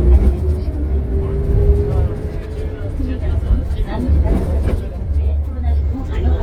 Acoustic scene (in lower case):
bus